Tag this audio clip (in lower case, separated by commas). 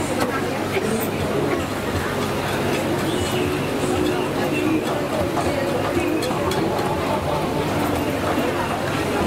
chopping food